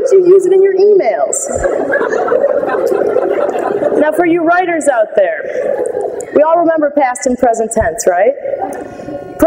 A woman speaking as a group of people are laughing